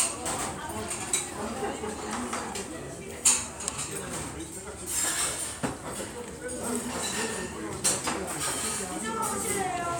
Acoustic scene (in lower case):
restaurant